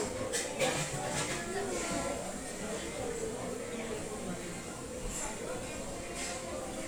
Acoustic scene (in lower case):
restaurant